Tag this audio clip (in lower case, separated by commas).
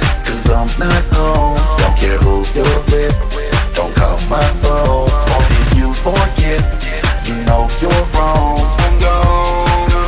music